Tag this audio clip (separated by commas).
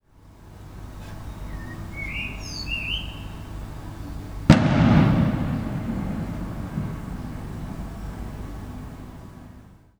Bird, Wild animals, Fireworks, Animal, Explosion